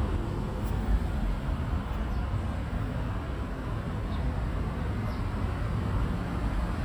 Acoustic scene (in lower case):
residential area